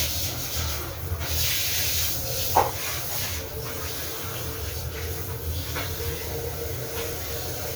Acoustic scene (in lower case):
restroom